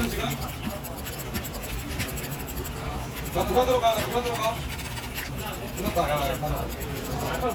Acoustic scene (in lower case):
crowded indoor space